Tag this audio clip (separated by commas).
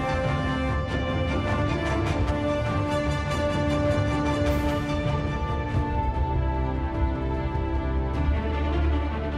Music, Speech